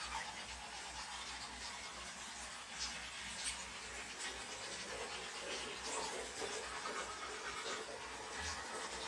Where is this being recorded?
in a restroom